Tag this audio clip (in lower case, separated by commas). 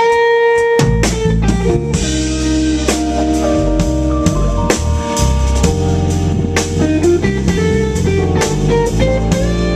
music, musical instrument, strum, acoustic guitar